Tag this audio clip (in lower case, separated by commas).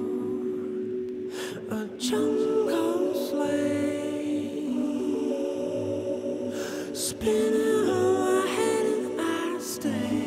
music